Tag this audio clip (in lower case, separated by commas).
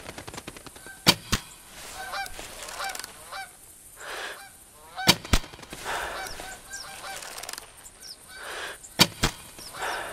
fowl, goose, honk